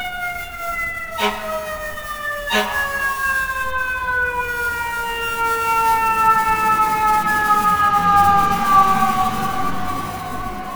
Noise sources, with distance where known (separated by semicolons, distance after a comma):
siren, near